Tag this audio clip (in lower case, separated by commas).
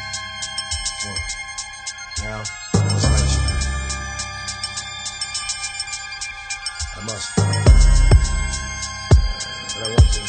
music